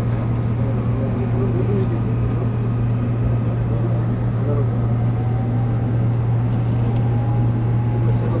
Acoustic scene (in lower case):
subway train